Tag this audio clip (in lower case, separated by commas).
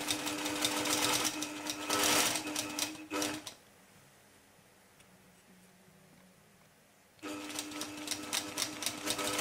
sewing machine